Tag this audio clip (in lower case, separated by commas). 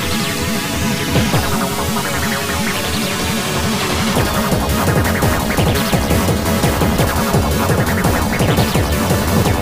music, soundtrack music, dance music